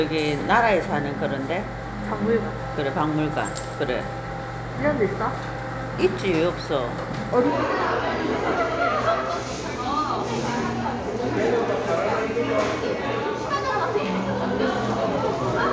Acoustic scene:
crowded indoor space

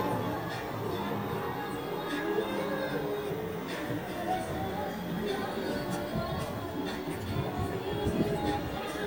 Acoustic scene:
street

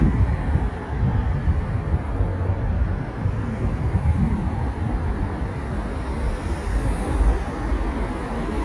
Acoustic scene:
street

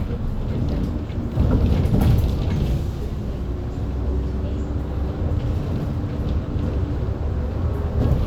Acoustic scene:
bus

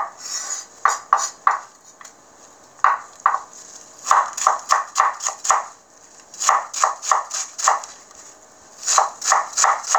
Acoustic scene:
kitchen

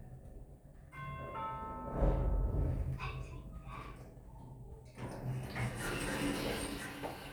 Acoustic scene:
elevator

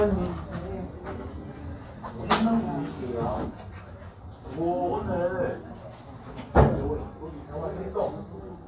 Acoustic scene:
crowded indoor space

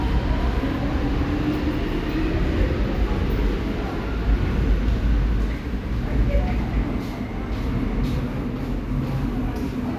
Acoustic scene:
subway station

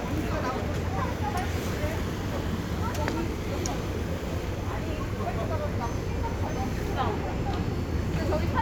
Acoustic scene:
residential area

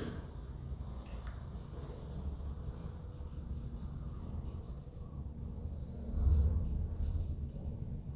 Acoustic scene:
elevator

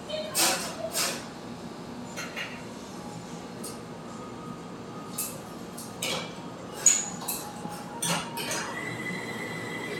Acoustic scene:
cafe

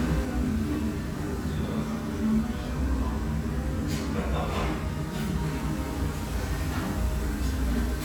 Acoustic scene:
restaurant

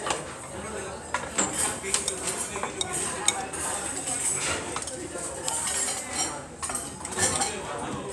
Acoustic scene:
restaurant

